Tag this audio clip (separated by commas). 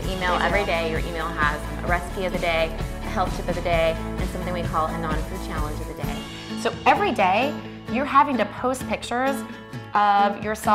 Speech, Music